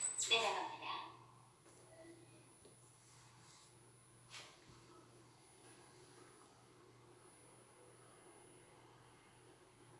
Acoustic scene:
elevator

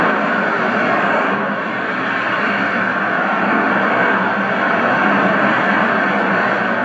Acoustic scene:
street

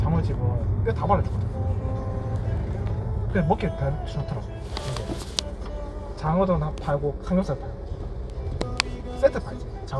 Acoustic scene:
car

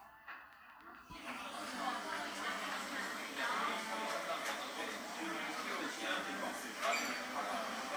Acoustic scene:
cafe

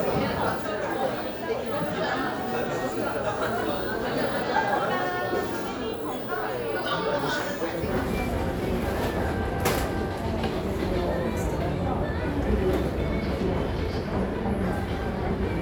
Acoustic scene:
crowded indoor space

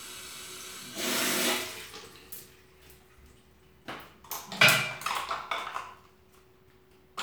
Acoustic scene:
restroom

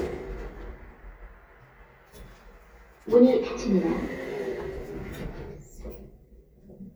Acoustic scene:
elevator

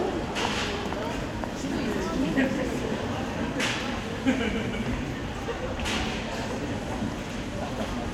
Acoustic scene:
crowded indoor space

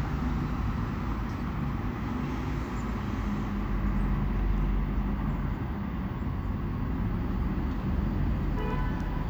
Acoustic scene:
street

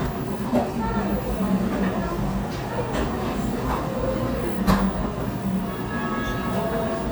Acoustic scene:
cafe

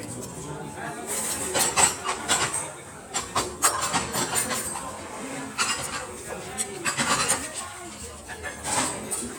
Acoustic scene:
restaurant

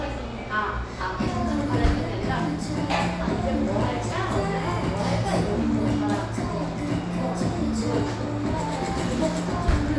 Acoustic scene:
cafe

